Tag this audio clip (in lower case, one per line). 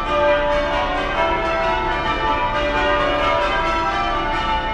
church bell
bell